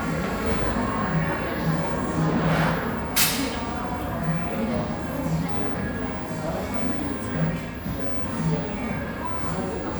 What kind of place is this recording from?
cafe